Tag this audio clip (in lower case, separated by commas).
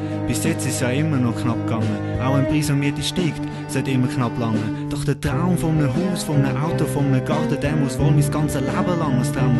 speech, music